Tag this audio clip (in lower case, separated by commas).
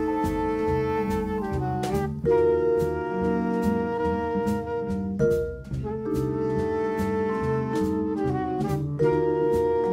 jazz, music